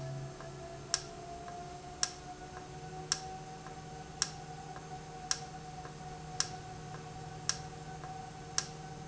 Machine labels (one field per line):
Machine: valve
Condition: normal